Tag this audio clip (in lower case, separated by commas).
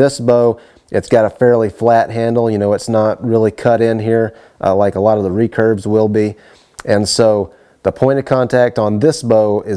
speech